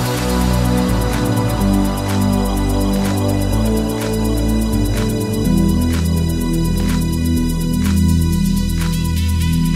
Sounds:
electronic music, music, house music

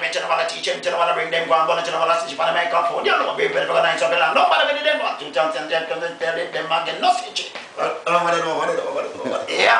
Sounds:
music

